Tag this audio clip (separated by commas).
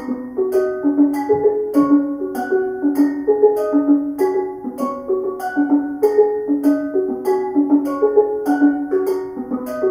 playing steelpan